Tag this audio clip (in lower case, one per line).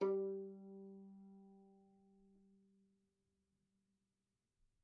bowed string instrument
musical instrument
music